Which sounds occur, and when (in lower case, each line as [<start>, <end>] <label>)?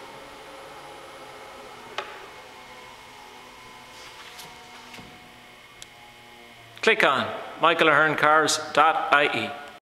[0.00, 5.07] power windows
[1.93, 1.98] tick
[3.91, 4.34] scrape
[4.35, 4.40] tick
[4.90, 4.94] tick
[4.99, 9.76] mechanisms
[5.78, 5.80] tick
[6.72, 6.75] tick
[6.78, 7.50] male speech
[7.59, 8.62] male speech
[8.69, 8.72] tick
[8.73, 9.55] male speech
[9.63, 9.68] tick